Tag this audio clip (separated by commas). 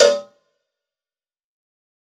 Bell, Cowbell